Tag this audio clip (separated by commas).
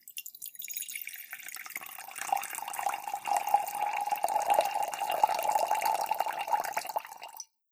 dribble, Fill (with liquid), Pour, Liquid